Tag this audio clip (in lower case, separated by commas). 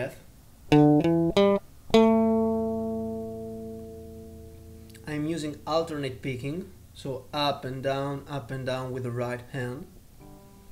guitar, speech, plucked string instrument, acoustic guitar, music, musical instrument